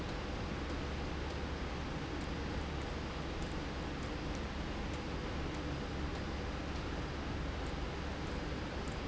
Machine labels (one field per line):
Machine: slide rail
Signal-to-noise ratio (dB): -6 dB